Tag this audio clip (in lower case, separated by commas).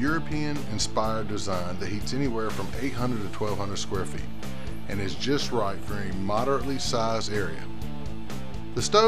music, speech